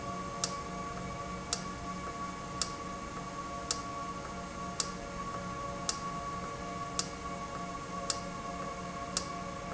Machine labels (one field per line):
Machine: valve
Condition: normal